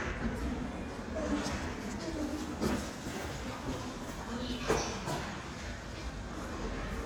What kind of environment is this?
elevator